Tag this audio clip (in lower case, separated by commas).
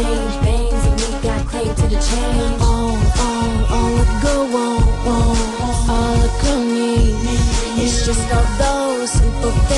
music